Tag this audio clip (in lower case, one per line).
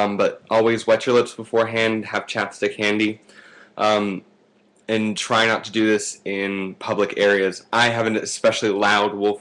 speech